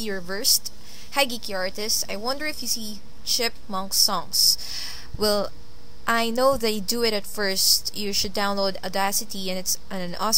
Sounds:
speech

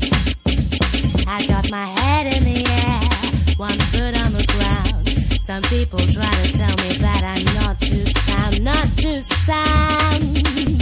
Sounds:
music

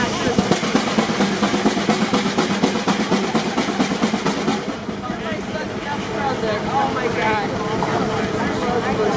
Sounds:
hiss
steam

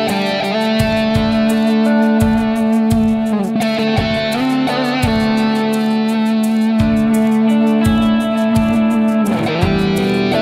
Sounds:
plucked string instrument
strum
musical instrument
electric guitar
music
guitar

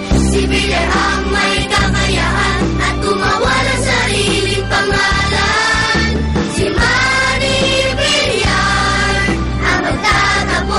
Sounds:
music
jingle (music)

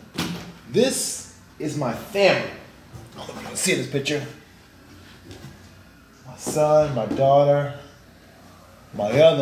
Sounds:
speech

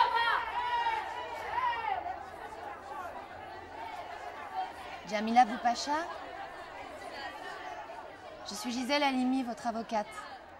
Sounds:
speech

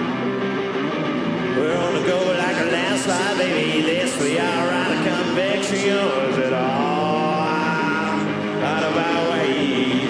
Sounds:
music

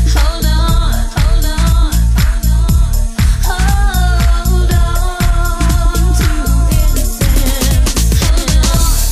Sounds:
disco

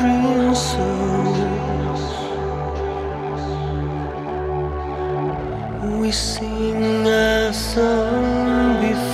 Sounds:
music

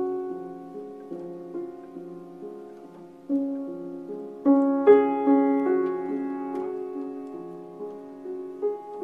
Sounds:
music

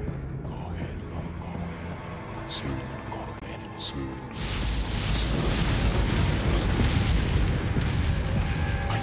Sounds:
speech
music

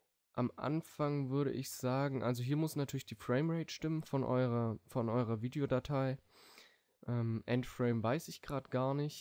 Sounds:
speech

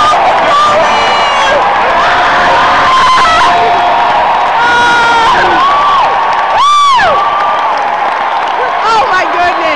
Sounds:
speech

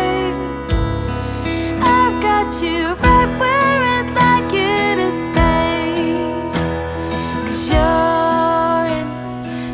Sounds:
music

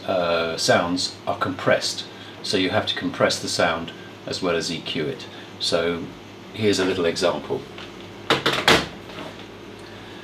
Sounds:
speech

